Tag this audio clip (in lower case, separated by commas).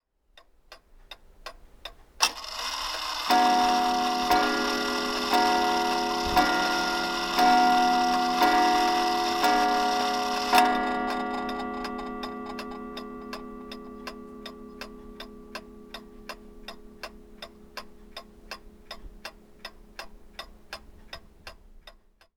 clock, tick-tock, mechanisms